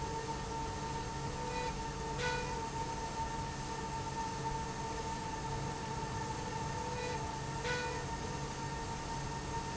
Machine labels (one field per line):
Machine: slide rail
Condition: normal